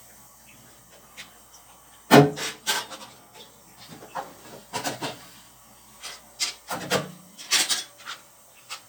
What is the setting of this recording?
kitchen